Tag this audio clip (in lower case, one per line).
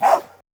dog
bark
pets
animal